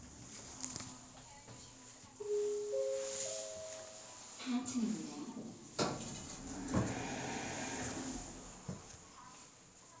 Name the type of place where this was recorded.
elevator